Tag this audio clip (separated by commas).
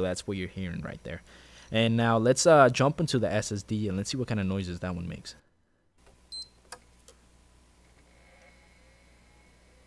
Speech